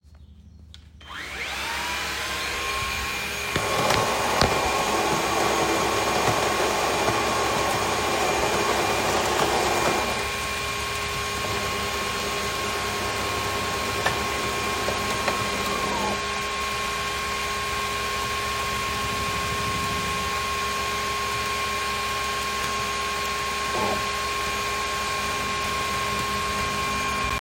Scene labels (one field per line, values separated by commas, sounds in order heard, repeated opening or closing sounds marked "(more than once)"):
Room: kitchen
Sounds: vacuum cleaner, coffee machine, keyboard typing